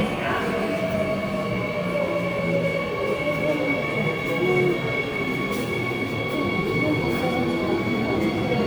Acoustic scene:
subway station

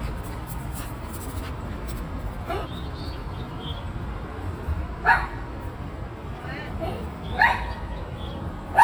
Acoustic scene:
park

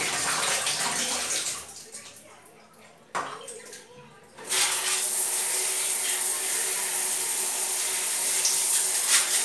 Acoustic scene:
restroom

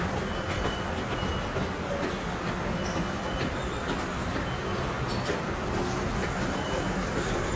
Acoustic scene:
subway station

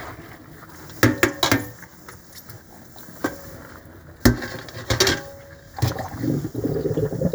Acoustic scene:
kitchen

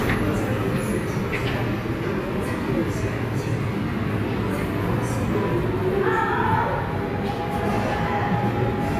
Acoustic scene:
subway station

